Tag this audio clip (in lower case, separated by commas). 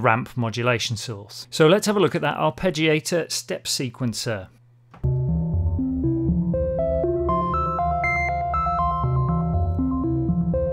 musical instrument, music, speech, synthesizer